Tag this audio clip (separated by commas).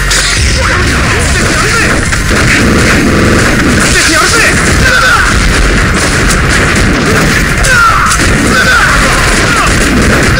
Speech